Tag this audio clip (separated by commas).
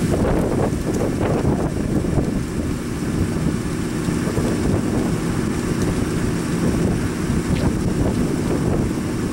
Wind, Wind noise (microphone)